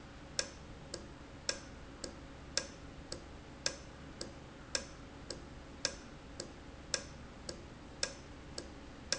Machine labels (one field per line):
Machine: valve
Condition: normal